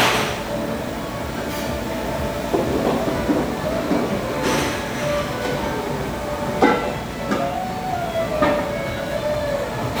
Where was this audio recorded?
in a restaurant